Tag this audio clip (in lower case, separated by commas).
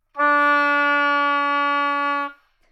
wind instrument, musical instrument, music